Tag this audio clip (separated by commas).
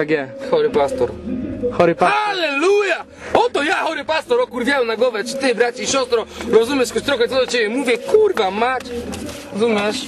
Music, Speech